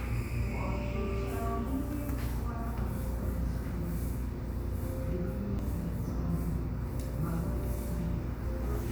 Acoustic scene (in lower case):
cafe